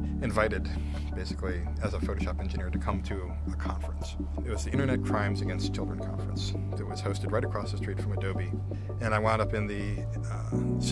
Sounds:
Music, Speech

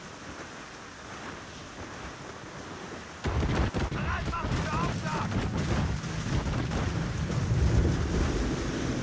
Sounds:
Wind, Ocean, surf, Water vehicle, ocean burbling, Wind noise (microphone)

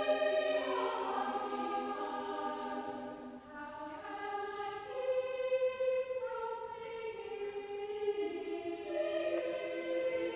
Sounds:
singing choir

